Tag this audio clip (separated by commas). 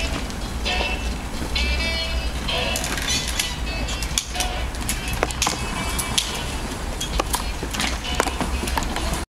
Music, Vehicle, Bicycle